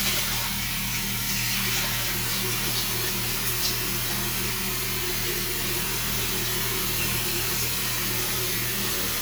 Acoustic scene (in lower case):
restroom